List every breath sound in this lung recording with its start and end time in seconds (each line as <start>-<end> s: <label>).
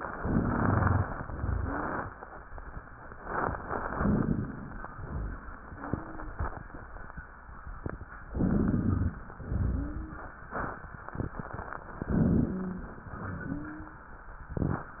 0.13-1.06 s: inhalation
0.21-1.01 s: rhonchi
1.18-2.11 s: exhalation
1.29-1.75 s: rhonchi
1.56-2.01 s: wheeze
3.93-4.86 s: inhalation
3.97-4.42 s: crackles
4.92-5.50 s: exhalation
4.92-5.50 s: rhonchi
8.29-9.22 s: inhalation
8.35-9.15 s: rhonchi
9.49-10.42 s: exhalation
9.71-10.38 s: wheeze
12.03-12.96 s: inhalation
12.52-12.92 s: wheeze
13.13-14.06 s: exhalation
13.43-14.10 s: wheeze